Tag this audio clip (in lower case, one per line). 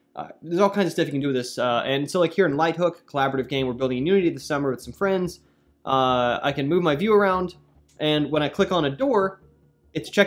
speech